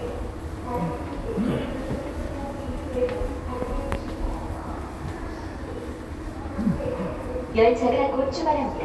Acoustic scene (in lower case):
subway station